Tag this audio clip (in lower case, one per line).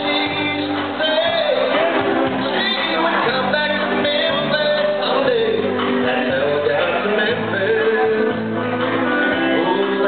background music
tender music
music